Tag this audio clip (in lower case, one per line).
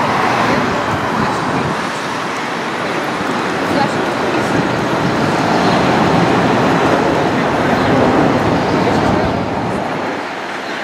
speech
vehicle